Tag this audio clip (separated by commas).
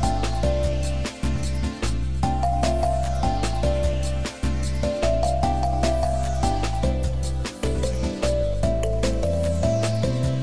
Music